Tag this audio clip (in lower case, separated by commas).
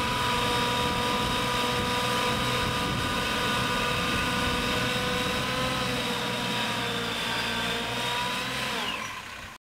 truck, vehicle